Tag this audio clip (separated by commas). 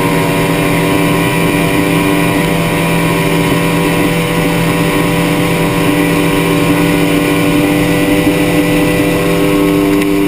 Boat, speedboat, Vehicle